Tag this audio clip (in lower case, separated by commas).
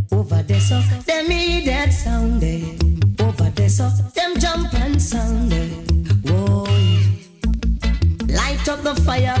music